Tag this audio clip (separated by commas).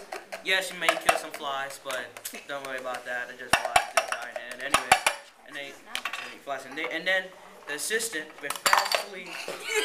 Speech, Laughter